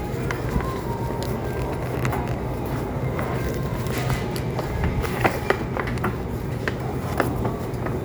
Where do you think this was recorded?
in a crowded indoor space